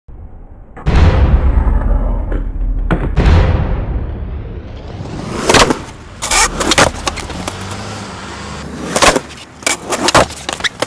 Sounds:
skateboard, skateboarding

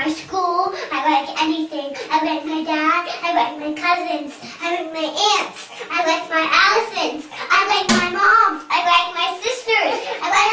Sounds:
speech, inside a small room, kid speaking

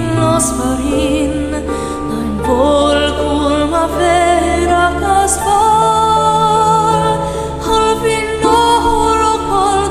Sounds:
mantra, music

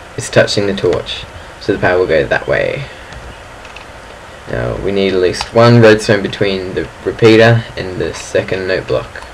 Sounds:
speech

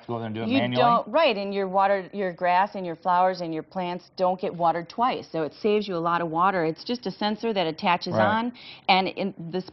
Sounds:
speech

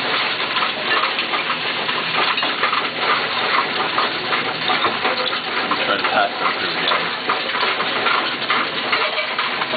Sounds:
speech

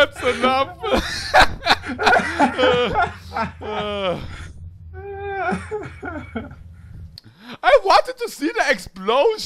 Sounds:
speech

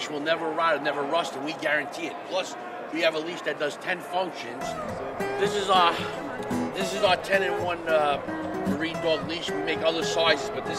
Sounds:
speech, music

